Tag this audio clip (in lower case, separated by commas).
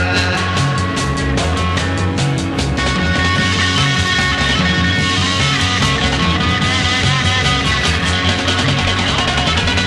psychedelic rock, music